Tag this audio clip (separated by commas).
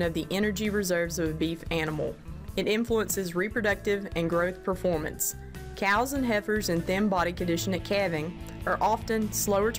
Speech, Music